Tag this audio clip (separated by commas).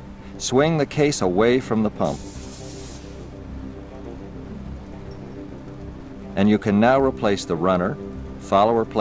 Music, Speech